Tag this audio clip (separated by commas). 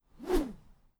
swish